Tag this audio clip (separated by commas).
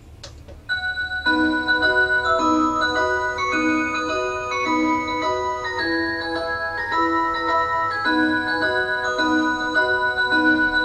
Music